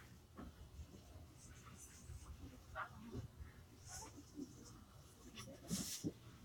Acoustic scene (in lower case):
subway train